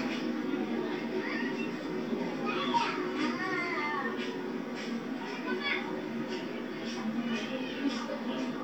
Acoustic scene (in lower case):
park